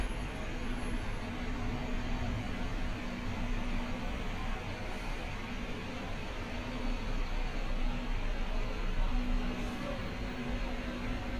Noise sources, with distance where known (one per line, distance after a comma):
unidentified powered saw, far